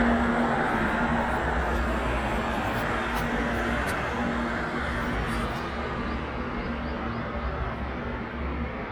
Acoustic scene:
street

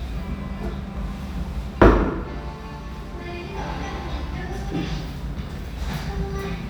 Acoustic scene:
restaurant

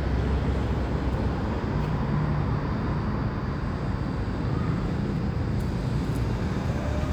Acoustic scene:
street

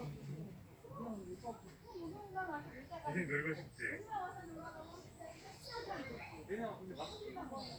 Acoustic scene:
park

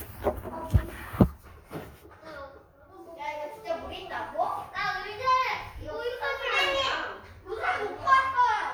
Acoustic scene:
crowded indoor space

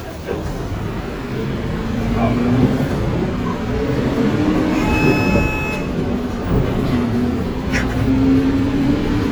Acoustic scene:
bus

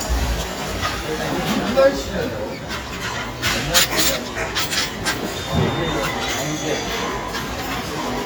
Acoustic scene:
restaurant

